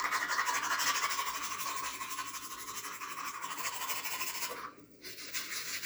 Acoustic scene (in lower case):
restroom